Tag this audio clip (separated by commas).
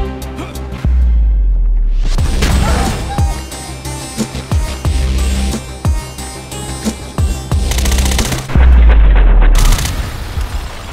Music, outside, urban or man-made